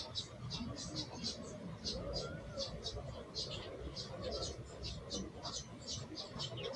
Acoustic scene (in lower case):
park